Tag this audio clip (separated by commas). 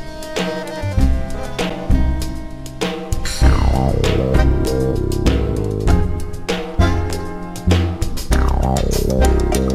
Music